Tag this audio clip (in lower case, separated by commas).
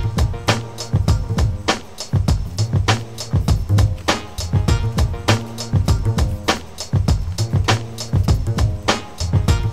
music